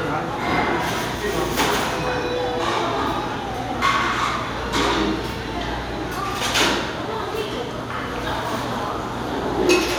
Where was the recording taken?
in a restaurant